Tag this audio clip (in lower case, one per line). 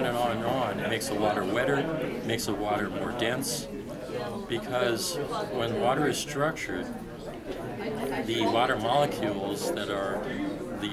speech